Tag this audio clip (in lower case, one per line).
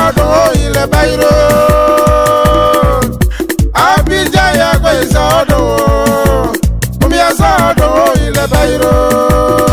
theme music
soundtrack music
music